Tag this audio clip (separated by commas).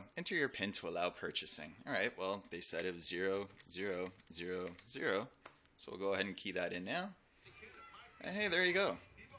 Speech